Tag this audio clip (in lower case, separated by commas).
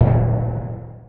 musical instrument, percussion, drum, music